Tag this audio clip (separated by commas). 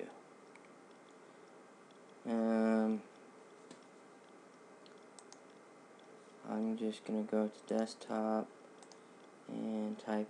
Speech